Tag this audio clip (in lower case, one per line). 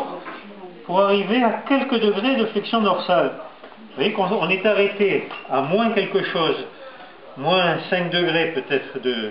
speech